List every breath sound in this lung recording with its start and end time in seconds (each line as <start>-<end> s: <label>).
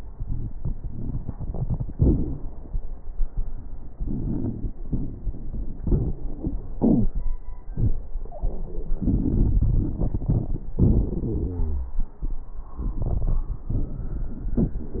9.01-10.69 s: inhalation
9.01-10.69 s: crackles
10.79-12.00 s: exhalation
11.44-12.00 s: wheeze